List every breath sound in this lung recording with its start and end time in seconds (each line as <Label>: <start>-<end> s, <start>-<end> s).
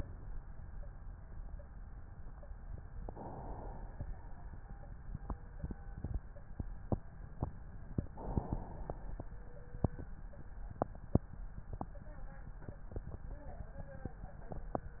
Inhalation: 2.97-4.12 s, 8.10-9.21 s